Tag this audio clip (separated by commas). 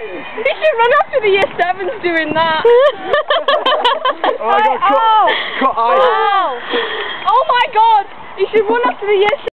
Speech